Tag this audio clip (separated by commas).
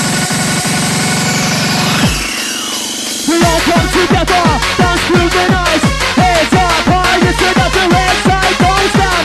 Hip hop music, Music